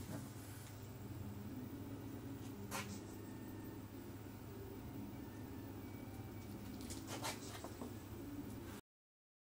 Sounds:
printer

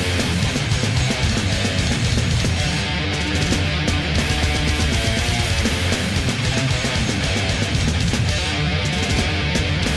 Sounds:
heavy metal, music

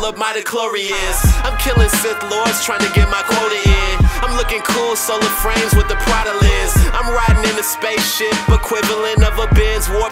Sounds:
music

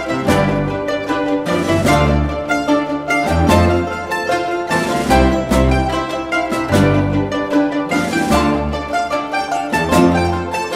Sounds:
music, mandolin, classical music, orchestra

